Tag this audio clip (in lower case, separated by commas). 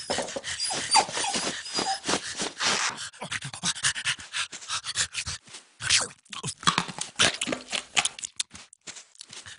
pets, yip, whimper (dog), dog, animal